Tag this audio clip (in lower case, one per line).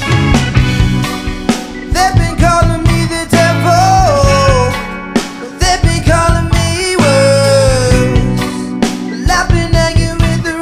music